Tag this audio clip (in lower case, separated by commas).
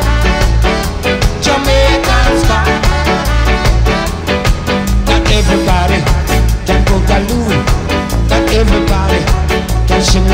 ska, psychedelic rock, music